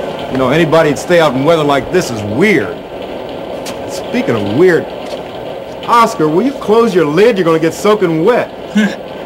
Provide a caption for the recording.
Rain is falling on a surface and a man speaks